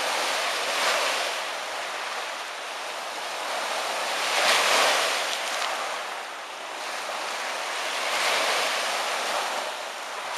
Water splashing and wind blowing